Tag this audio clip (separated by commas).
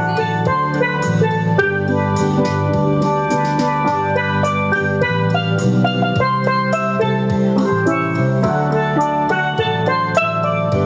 playing steelpan